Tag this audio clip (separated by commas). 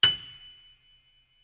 Music, Piano, Musical instrument, Keyboard (musical)